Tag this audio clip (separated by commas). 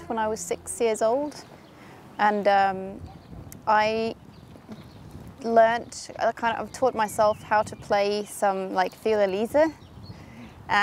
Speech